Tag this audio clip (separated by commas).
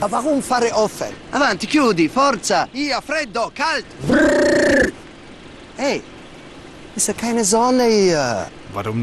Speech, Vehicle, outside, rural or natural